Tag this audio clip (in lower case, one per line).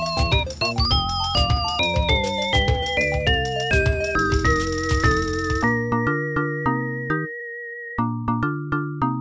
music